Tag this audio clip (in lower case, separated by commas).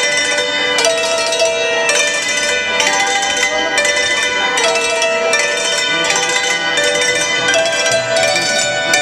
music